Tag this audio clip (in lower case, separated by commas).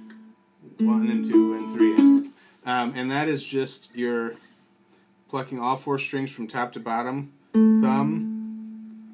speech, ukulele, plucked string instrument, music, musical instrument, guitar